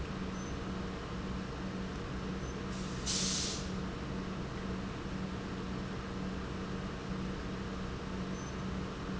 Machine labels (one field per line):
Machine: pump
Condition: normal